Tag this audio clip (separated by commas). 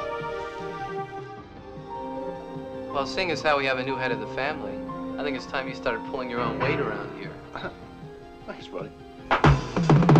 Music, Speech